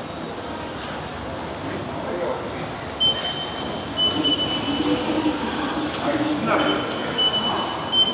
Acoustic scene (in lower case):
subway station